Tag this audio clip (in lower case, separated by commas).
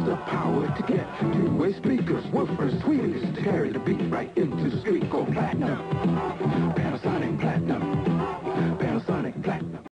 music